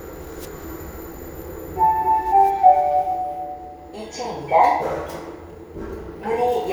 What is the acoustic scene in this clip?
elevator